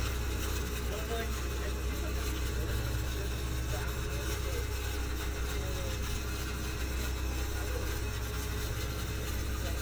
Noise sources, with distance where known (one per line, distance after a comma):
person or small group talking